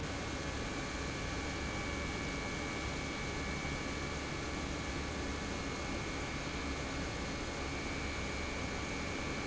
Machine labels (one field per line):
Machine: pump